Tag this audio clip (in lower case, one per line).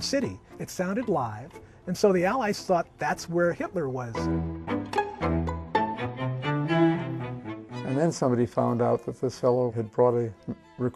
music
speech